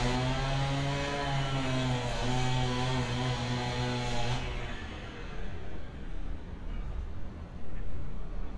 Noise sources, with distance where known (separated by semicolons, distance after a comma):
large rotating saw